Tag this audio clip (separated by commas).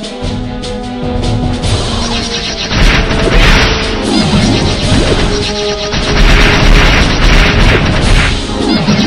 Music